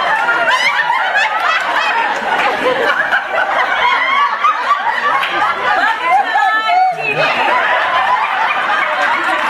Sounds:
speech

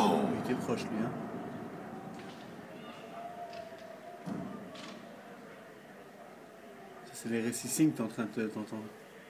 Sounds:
speech

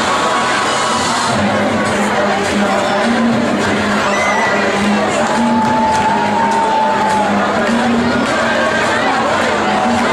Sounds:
cheering, crowd, speech, music

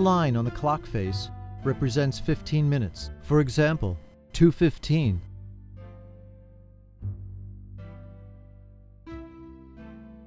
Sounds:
speech, music

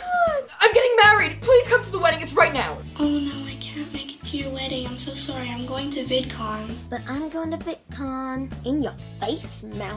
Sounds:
speech, music, inside a small room, kid speaking

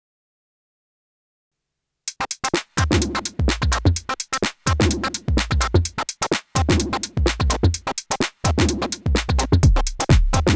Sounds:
music, synthesizer, musical instrument, drum machine, electronic music

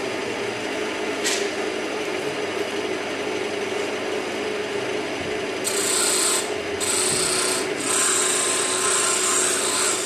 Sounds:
tools

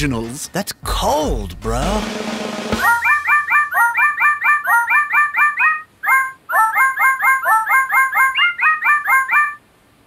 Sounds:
speech, music

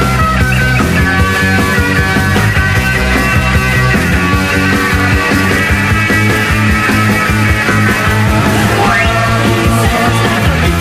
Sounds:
music, rock and roll

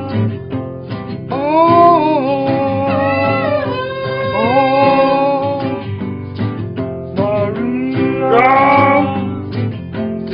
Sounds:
music, male singing, female singing

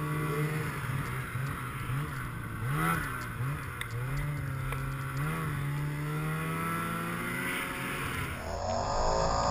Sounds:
driving snowmobile

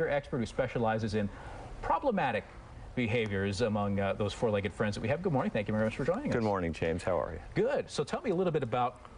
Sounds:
speech

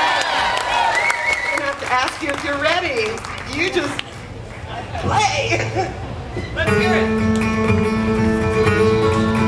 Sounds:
guitar, music, plucked string instrument, speech, musical instrument, acoustic guitar

